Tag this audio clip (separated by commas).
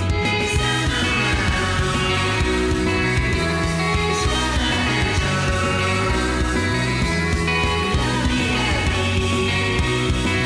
Music